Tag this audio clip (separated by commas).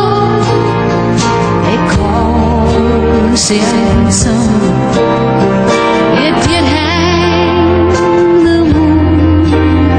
Music